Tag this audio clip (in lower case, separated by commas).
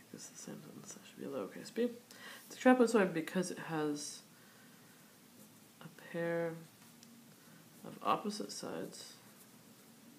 writing